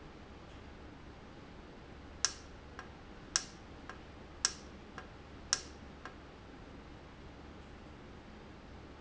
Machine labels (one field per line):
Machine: valve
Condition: normal